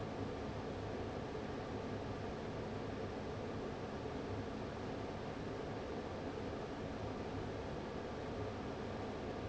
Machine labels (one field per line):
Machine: fan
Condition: abnormal